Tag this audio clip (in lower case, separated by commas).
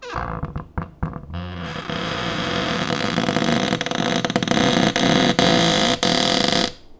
cupboard open or close, home sounds